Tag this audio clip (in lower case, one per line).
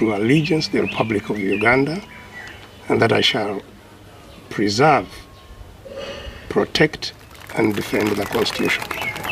speech
narration
male speech